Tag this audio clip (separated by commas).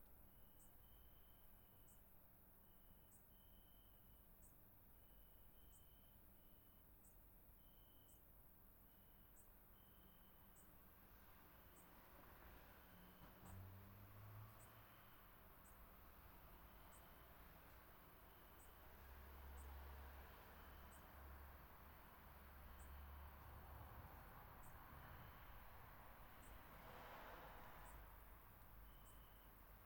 Cricket, Wild animals, Animal, Insect